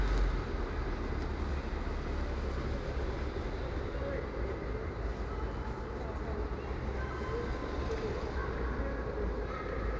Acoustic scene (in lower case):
residential area